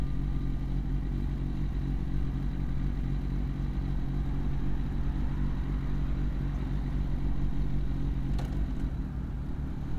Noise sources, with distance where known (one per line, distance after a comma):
engine of unclear size, near